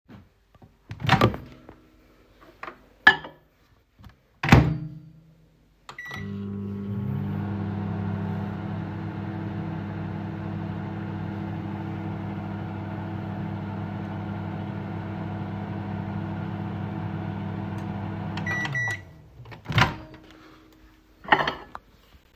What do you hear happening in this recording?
Microwave opened, bowl placed inside, microwave runs and then stops.